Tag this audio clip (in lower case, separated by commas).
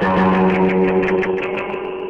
guitar, plucked string instrument, musical instrument, music